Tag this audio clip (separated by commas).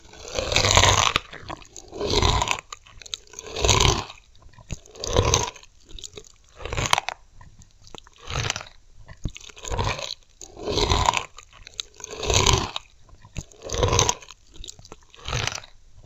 Chewing